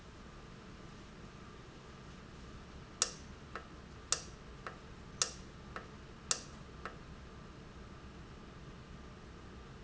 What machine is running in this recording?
valve